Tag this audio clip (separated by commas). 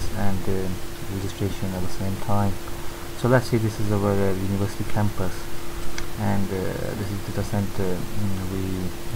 Speech